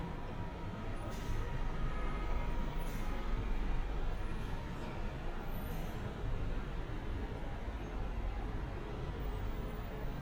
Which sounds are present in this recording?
medium-sounding engine, car horn